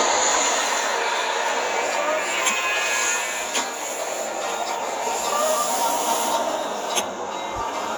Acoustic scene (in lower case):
car